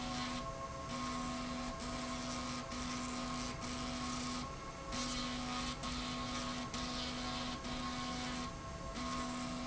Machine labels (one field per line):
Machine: slide rail